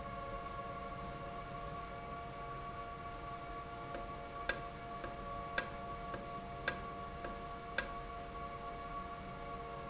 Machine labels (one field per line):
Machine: valve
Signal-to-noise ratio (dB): 0 dB